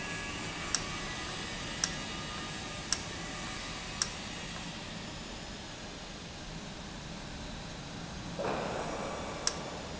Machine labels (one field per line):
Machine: valve